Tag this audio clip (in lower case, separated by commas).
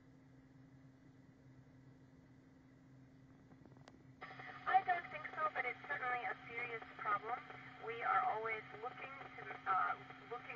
speech, radio